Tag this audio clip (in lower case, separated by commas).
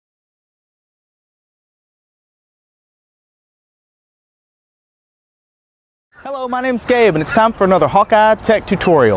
speech